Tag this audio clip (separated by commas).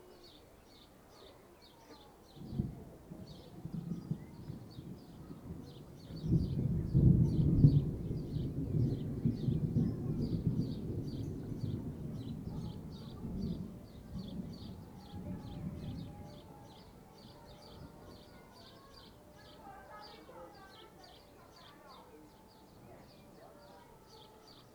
Thunder, Thunderstorm